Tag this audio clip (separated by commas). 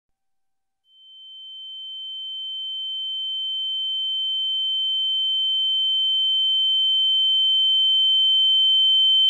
Sine wave